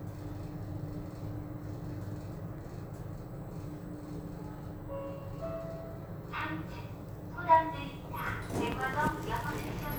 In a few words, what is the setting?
elevator